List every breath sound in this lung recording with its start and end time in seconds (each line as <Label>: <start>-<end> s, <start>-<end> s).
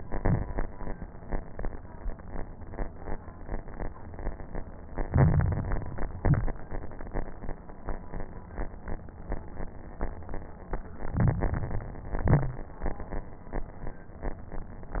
Inhalation: 5.05-6.10 s, 11.14-12.18 s
Exhalation: 0.00-0.66 s, 6.14-6.61 s, 12.20-12.67 s
Crackles: 0.00-0.66 s, 5.05-6.10 s, 6.14-6.61 s, 11.14-12.18 s, 12.20-12.67 s